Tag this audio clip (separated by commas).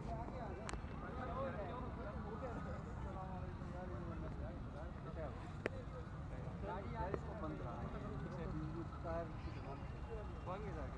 Speech